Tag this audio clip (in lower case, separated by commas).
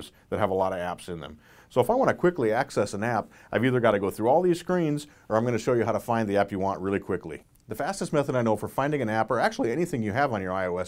speech